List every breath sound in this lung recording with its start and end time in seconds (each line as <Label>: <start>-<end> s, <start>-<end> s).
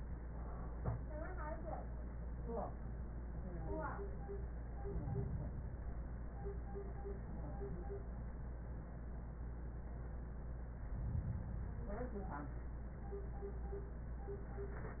Inhalation: 4.80-6.04 s, 10.85-11.95 s